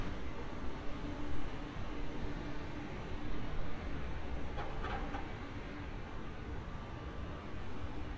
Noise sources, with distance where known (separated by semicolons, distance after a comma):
background noise